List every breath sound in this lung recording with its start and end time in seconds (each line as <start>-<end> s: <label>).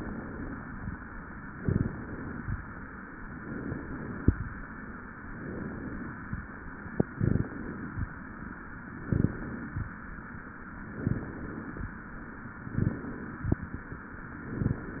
0.00-0.97 s: inhalation
1.59-2.56 s: inhalation
3.38-4.35 s: inhalation
5.31-6.28 s: inhalation
6.98-7.95 s: inhalation
8.92-9.89 s: inhalation
10.89-11.86 s: inhalation
12.69-13.66 s: inhalation
14.32-15.00 s: inhalation